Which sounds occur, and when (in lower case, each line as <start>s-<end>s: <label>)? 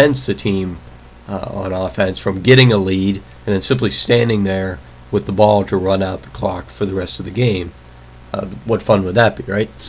0.0s-0.8s: man speaking
0.0s-9.8s: mechanisms
0.9s-1.0s: clicking
1.4s-3.3s: man speaking
3.2s-3.3s: clicking
3.5s-4.9s: man speaking
5.2s-6.3s: man speaking
6.5s-7.8s: man speaking
8.4s-9.8s: man speaking